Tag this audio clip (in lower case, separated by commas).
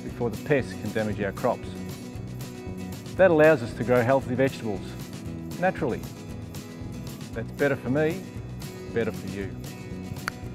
speech, music